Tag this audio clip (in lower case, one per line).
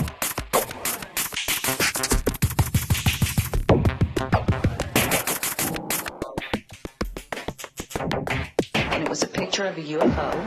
sampler
speech
music